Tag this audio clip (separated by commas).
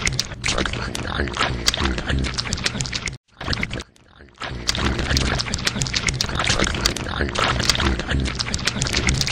mastication